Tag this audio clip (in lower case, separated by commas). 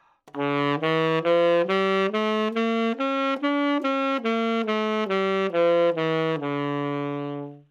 music, wind instrument, musical instrument